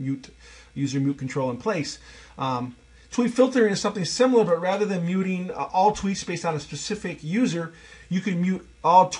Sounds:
Speech

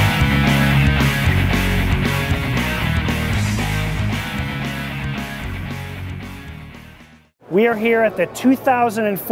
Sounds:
Music, Speech

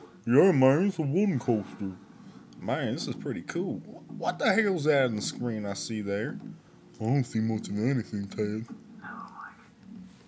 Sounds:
Speech

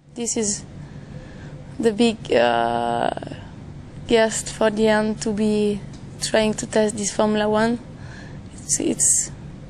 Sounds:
Speech

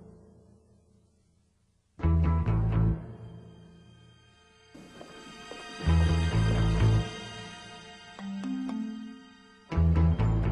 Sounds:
Music, inside a large room or hall

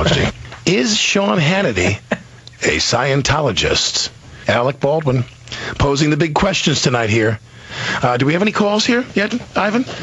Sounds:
Speech

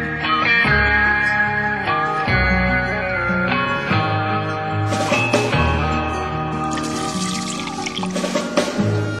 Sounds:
Water

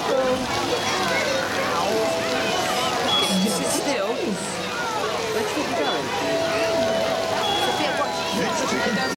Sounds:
Speech, Music

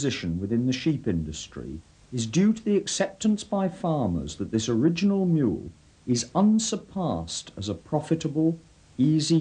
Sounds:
Speech

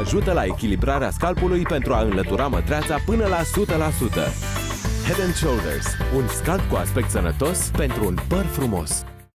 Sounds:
Music, Speech

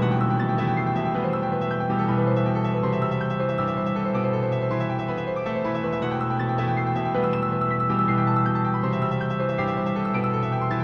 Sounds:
Music, Exciting music

